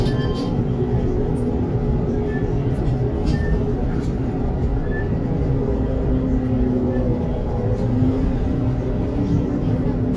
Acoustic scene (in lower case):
bus